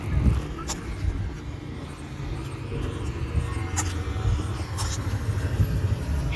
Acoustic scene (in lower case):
street